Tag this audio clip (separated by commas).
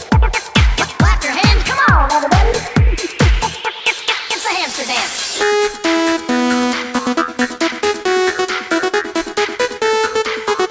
Techno, Music, Trance music